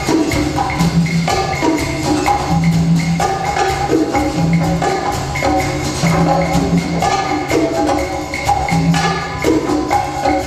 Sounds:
Wood block, Music, Percussion

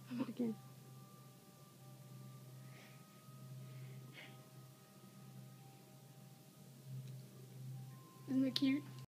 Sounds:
Speech

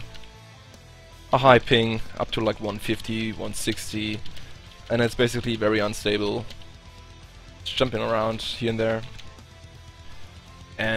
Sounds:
Speech, Music

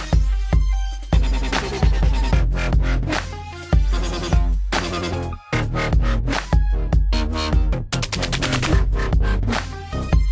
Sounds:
Music, Dubstep

